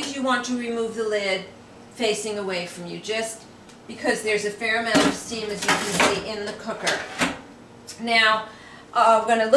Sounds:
speech

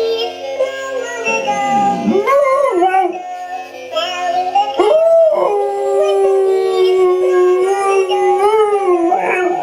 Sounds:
dog
pets
bow-wow
music
howl
animal

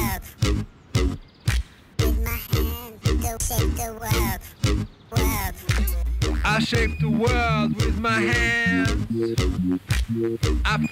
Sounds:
scratching (performance technique)

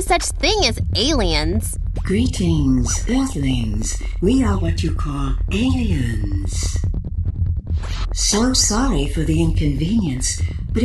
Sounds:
speech

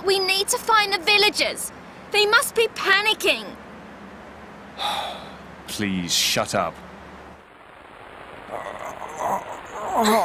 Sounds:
speech

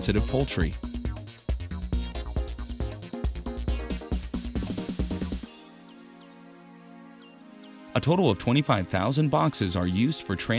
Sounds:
music
speech

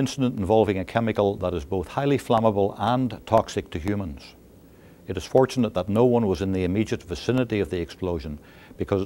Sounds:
speech

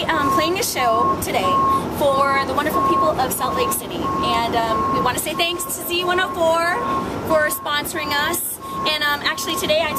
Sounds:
speech

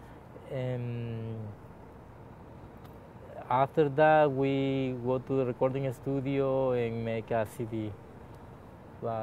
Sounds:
speech

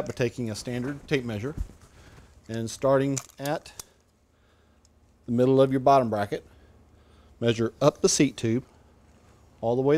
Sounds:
speech

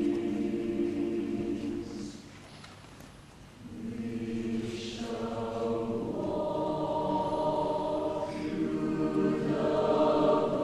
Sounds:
music

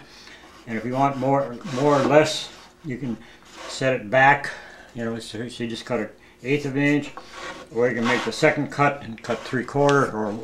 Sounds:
wood
speech

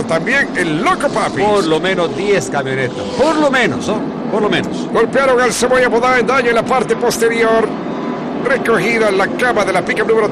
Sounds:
vehicle
speech
car

